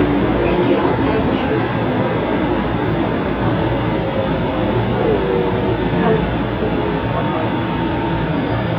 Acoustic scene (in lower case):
subway train